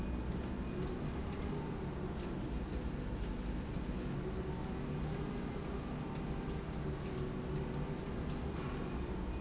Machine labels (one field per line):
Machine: slide rail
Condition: normal